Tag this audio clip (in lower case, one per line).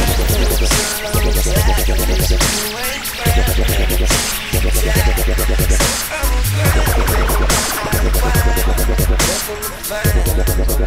music
dubstep
electronic music